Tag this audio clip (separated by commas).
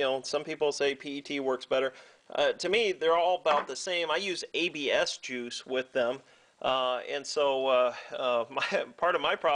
Speech